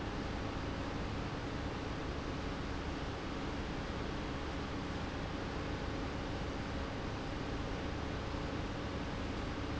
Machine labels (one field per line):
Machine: pump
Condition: abnormal